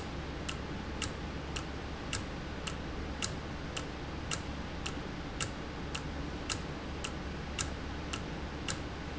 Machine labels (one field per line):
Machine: valve